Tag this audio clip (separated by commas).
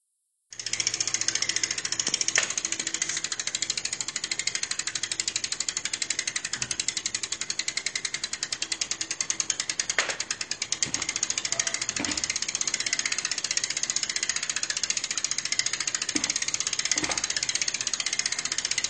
Bicycle, Vehicle